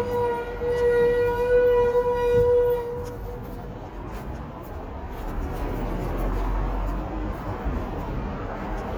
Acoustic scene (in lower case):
street